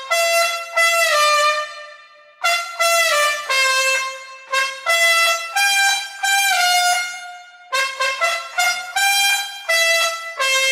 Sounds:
playing trumpet, music, musical instrument, classical music, trumpet, wind instrument, brass instrument

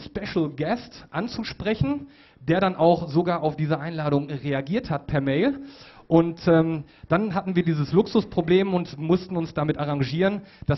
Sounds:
speech

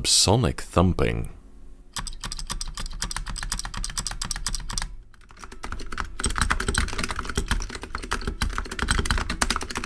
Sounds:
typing on computer keyboard

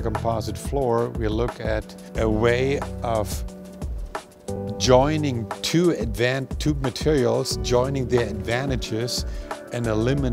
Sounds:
speech, music

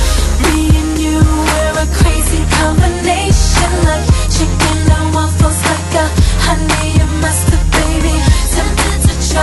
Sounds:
music

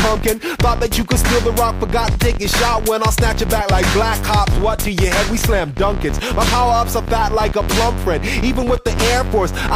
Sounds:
music

